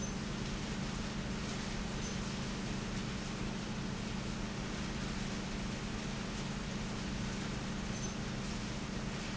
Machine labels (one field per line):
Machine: pump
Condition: normal